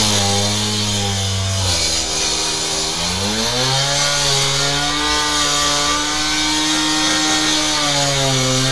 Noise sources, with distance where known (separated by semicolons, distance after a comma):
chainsaw, near